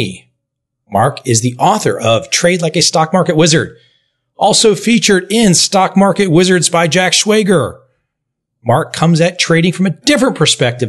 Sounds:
speech

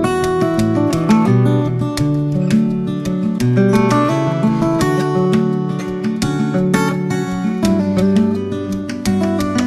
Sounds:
musical instrument, strum, plucked string instrument, music, guitar

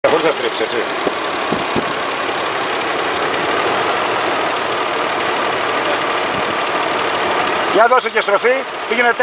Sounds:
vehicle, engine, car, speech

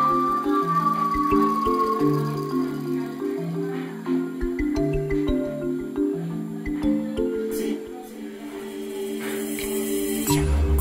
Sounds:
stream, music

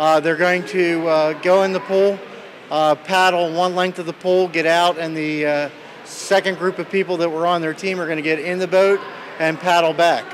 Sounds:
speech

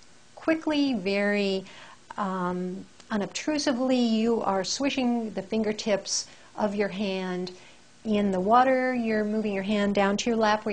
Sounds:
speech, inside a small room

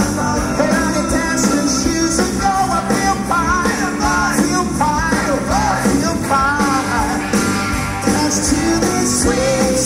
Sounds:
rhythm and blues, music, blues

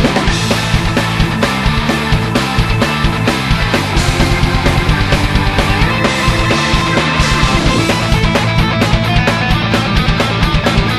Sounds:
music

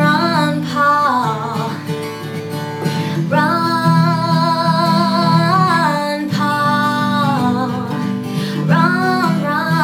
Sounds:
inside a small room, music, plucked string instrument, singing, female singing, musical instrument, guitar

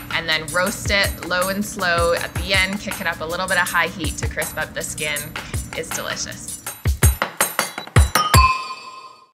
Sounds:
music, speech

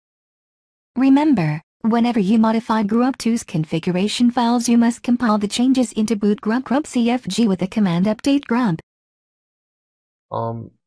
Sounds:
speech

